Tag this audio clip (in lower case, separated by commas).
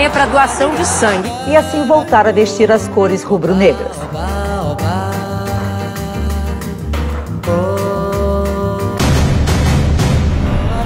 jazz